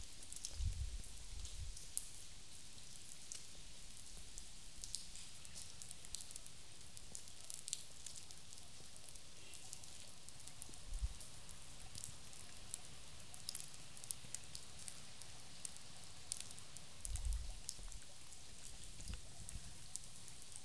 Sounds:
raindrop
motor vehicle (road)
liquid
pour
vehicle
trickle
rain
car
water
alarm
honking

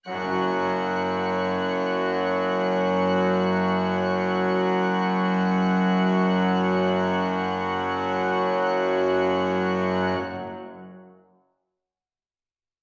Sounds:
keyboard (musical)
musical instrument
music
organ

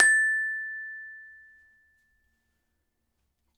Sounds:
glockenspiel
music
musical instrument
percussion
mallet percussion

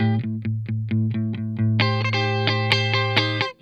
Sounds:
electric guitar
music
guitar
plucked string instrument
musical instrument

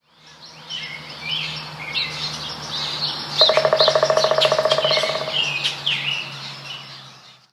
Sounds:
animal
wild animals
bird
bird vocalization

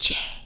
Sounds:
whispering
human voice

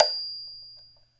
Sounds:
music
xylophone
percussion
musical instrument
mallet percussion

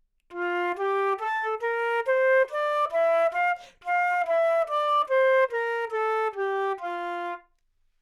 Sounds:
musical instrument
music
woodwind instrument

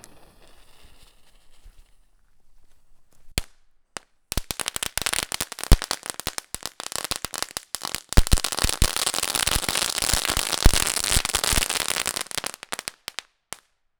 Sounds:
explosion
fireworks

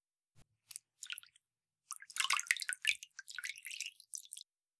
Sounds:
domestic sounds
bathtub (filling or washing)

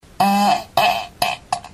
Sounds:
fart

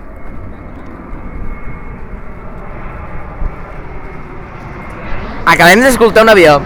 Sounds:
fixed-wing aircraft
aircraft
vehicle

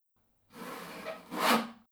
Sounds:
sawing
tools

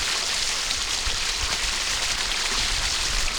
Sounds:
water
stream

